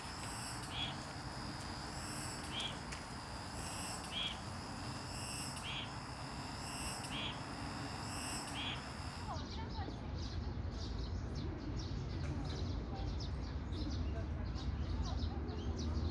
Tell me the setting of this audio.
park